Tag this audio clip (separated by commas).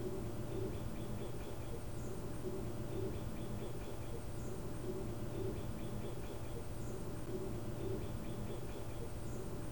Wild animals, Bird, Animal